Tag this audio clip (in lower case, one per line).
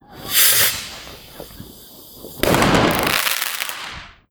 fireworks
explosion